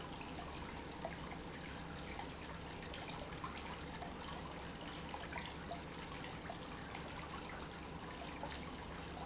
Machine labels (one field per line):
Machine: pump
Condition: normal